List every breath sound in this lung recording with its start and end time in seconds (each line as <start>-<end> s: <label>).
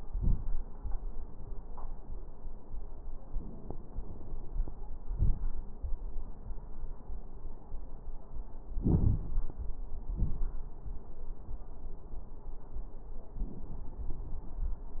8.75-9.45 s: inhalation
8.75-9.45 s: crackles
10.11-10.66 s: exhalation
10.11-10.66 s: crackles